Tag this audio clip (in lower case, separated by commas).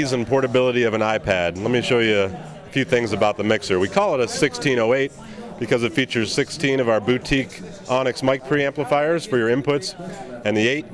speech